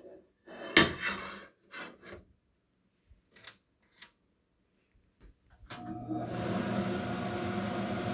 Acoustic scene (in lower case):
kitchen